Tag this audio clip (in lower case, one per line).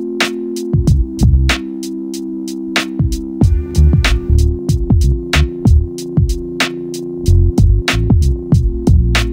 music
drum kit
musical instrument